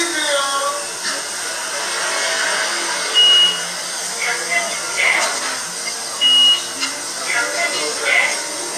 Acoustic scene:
restaurant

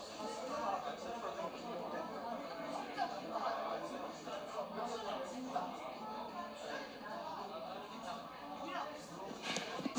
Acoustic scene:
crowded indoor space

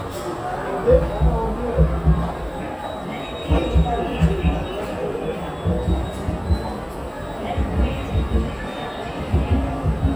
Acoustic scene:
subway station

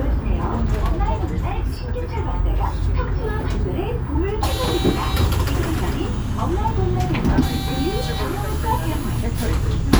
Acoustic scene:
bus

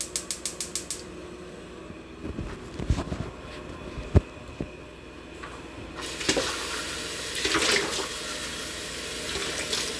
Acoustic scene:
kitchen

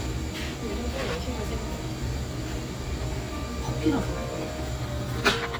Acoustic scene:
cafe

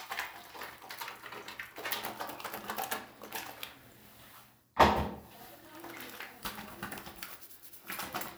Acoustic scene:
restroom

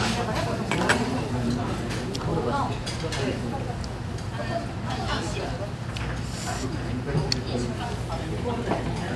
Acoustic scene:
restaurant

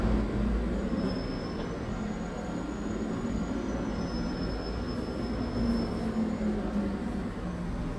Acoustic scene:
residential area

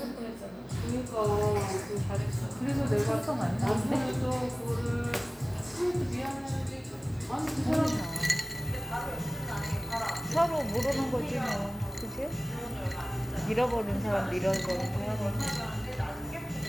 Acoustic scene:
cafe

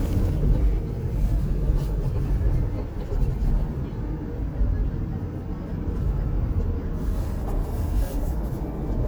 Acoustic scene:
car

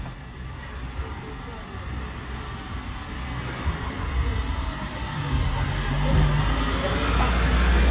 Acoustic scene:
residential area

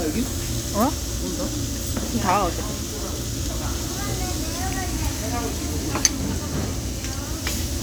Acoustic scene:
crowded indoor space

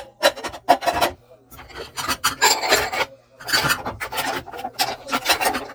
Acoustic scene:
kitchen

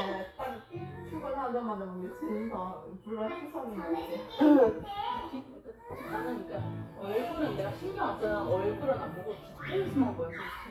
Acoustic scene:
crowded indoor space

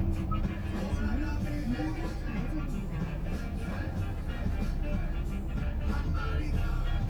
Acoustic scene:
car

